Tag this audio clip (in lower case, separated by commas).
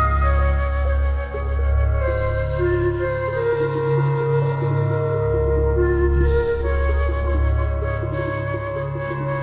music